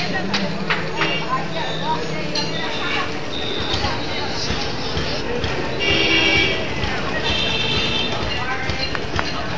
Vehicles nearby honking and people speaking